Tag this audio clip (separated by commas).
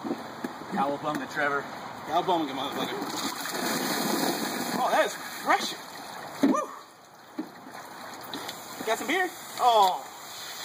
Water, Speech, Liquid, outside, rural or natural